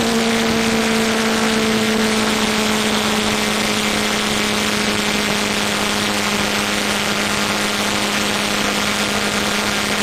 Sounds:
Vehicle, Motor vehicle (road)

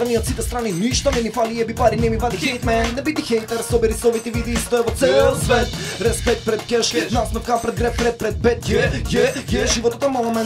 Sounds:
Music

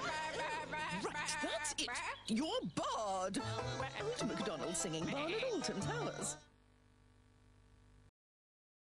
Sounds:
Speech, Music

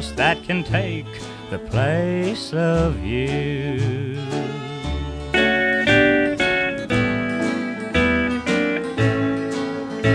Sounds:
Music, Steel guitar, Blues

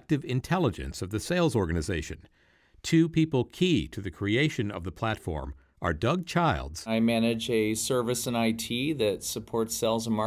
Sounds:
Speech

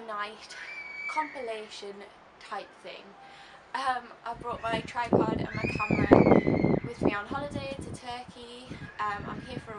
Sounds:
Speech

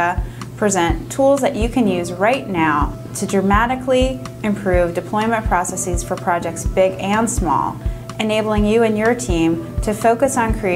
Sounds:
Music, Speech

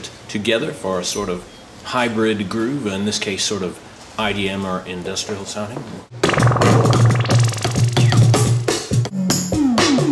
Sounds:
Drum machine, Musical instrument, Speech, Music, Synthesizer

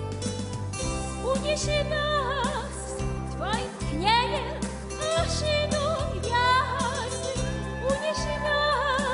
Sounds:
Music

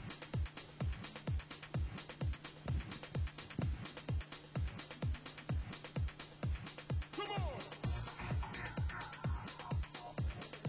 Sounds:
Pop music, Music

